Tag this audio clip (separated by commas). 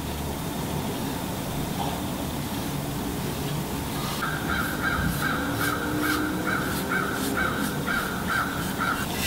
Waterfall